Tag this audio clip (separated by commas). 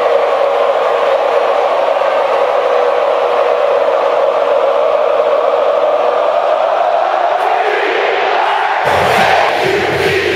Cheering, people cheering